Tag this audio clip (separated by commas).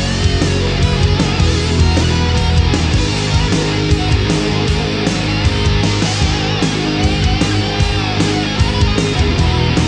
Progressive rock, Music